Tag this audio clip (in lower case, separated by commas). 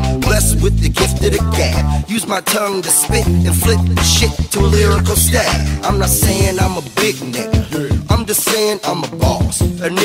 pop music, music